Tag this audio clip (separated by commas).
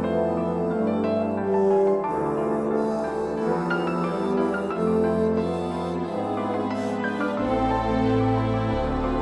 Music